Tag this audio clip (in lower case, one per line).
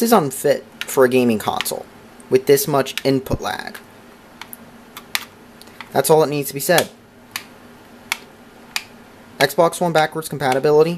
speech